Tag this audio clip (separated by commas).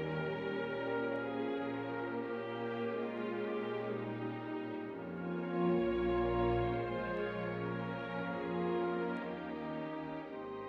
Music